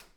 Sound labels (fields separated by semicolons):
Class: switch; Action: being turned on; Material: plastic